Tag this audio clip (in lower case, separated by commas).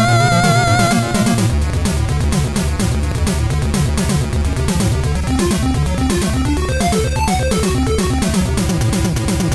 music